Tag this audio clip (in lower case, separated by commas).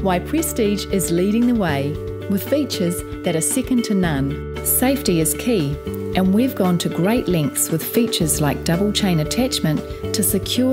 speech, music